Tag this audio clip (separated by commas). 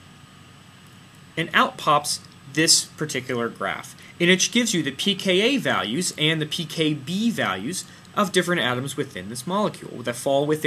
Speech